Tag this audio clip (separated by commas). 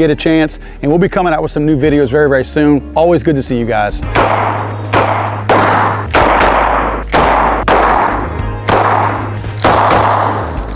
cap gun shooting